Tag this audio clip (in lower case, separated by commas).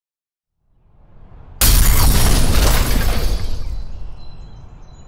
smash